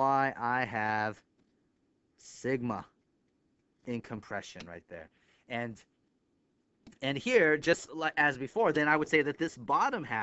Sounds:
Speech

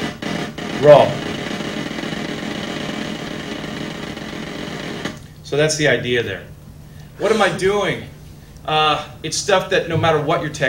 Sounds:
Snare drum, Drum roll, Drum, Percussion

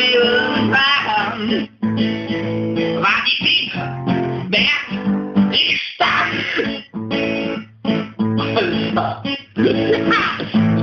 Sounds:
Music, Speech

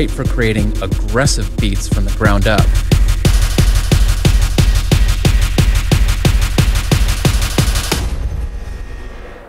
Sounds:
Music

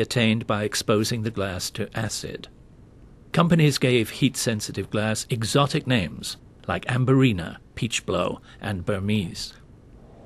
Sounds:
Speech

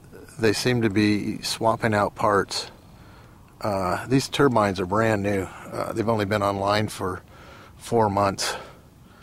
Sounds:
Speech

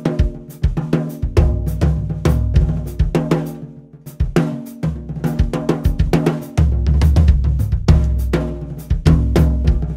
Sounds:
playing snare drum

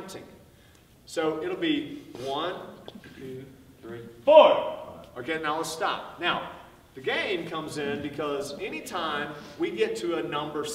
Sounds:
Speech

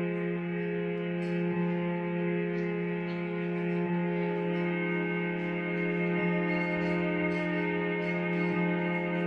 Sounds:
Musical instrument, Music, String section

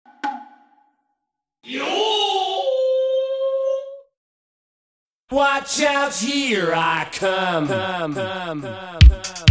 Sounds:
Music

